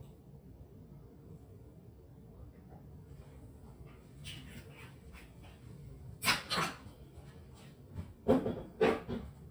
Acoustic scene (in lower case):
kitchen